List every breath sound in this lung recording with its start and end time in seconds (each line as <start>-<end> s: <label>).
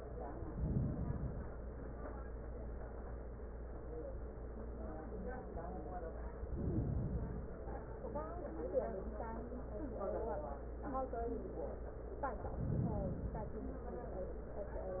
0.46-1.49 s: inhalation
6.33-7.52 s: inhalation
12.40-13.70 s: inhalation